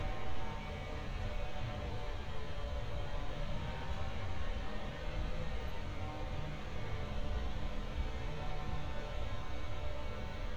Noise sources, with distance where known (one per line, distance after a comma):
unidentified powered saw, far